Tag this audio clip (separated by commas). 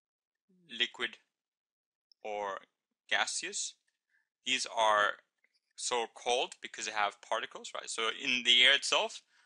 Speech